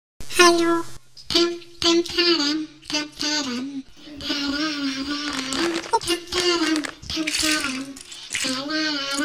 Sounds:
speech

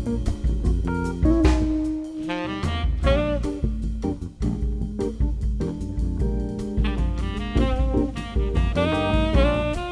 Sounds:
music

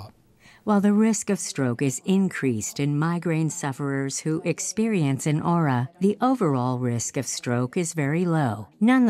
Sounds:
conversation, speech

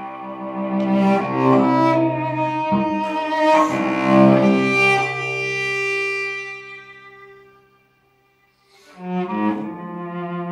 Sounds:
classical music, cello, music, musical instrument, double bass, bowed string instrument

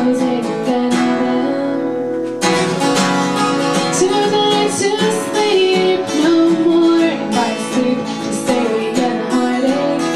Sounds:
music, happy music

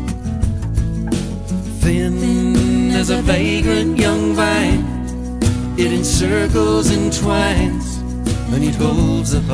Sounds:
happy music, music

